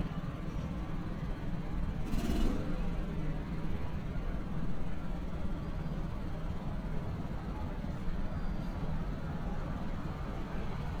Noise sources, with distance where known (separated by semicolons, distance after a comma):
medium-sounding engine, near